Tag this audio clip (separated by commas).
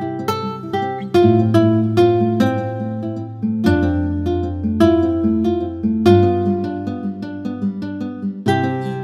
Music